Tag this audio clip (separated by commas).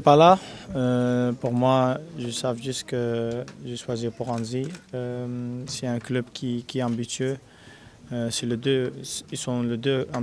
Speech